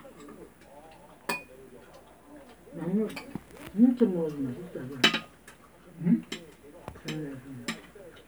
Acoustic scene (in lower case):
restaurant